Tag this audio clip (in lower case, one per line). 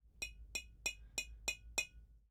tap
glass